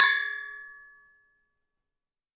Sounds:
Bell

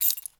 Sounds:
Keys jangling, home sounds

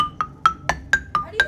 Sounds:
xylophone, Mallet percussion, Musical instrument, Percussion, Music

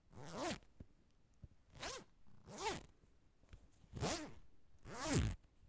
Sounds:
Zipper (clothing), home sounds

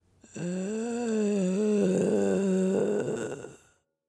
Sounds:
Human voice

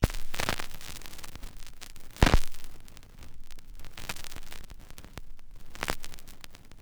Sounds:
Crackle

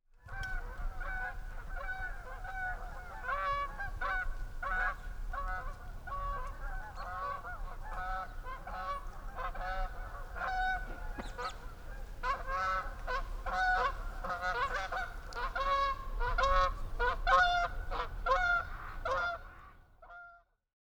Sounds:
Fowl, livestock, Animal

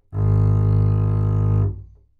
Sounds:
Musical instrument, Bowed string instrument, Music

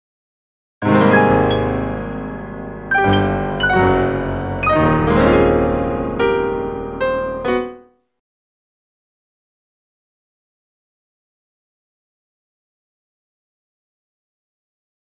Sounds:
Keyboard (musical), Piano, Musical instrument, Music

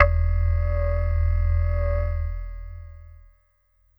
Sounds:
Musical instrument, Music, Keyboard (musical)

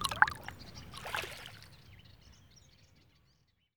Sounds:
Animal, Bird vocalization, Bird, Wild animals

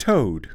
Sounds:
man speaking, Speech, Human voice

